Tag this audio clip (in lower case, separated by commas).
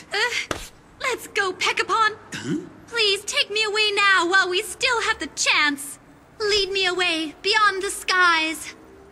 speech, outside, rural or natural